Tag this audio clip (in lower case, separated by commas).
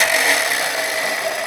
tools